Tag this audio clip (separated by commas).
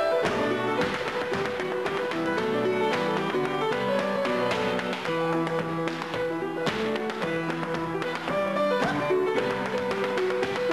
Tap, Music